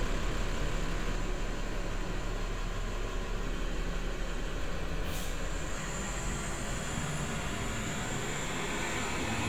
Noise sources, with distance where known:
large-sounding engine, near

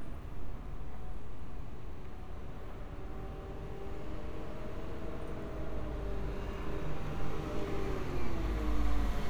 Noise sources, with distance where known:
small-sounding engine

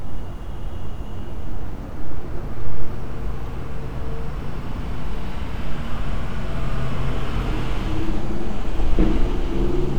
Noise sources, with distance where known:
large-sounding engine, near

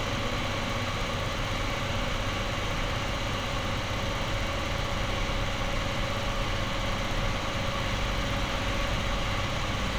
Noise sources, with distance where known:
engine of unclear size
unidentified impact machinery

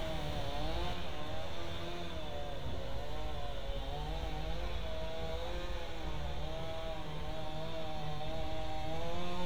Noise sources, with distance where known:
unidentified powered saw

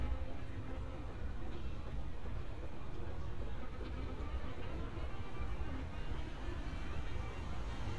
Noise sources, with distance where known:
background noise

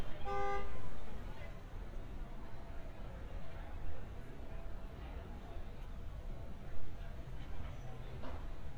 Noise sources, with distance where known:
car horn, near

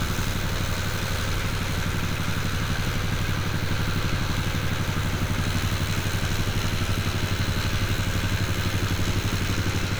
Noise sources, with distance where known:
engine of unclear size

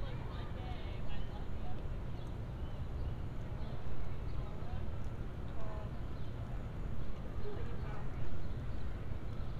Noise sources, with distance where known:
person or small group talking, far

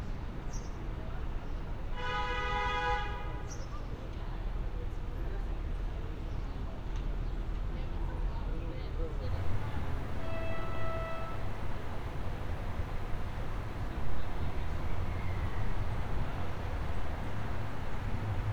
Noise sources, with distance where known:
car horn

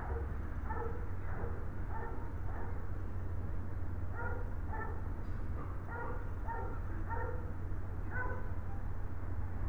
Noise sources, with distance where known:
medium-sounding engine
dog barking or whining

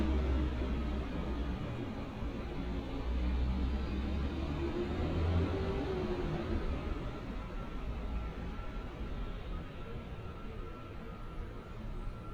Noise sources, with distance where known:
engine of unclear size

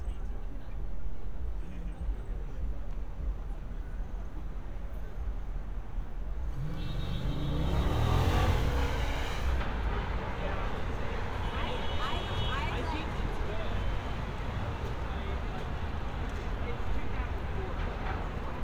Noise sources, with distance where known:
medium-sounding engine
car horn, far
person or small group talking

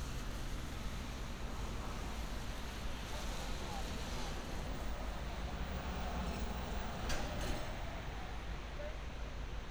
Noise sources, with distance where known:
background noise

